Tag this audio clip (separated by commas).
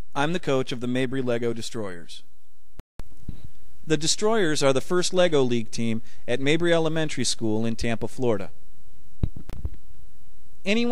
Speech